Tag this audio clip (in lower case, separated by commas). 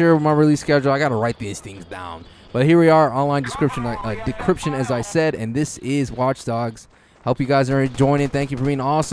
speech